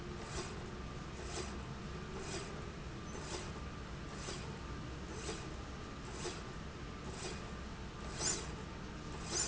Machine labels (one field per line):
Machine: slide rail